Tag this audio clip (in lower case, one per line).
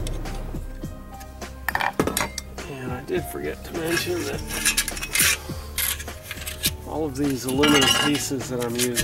music
speech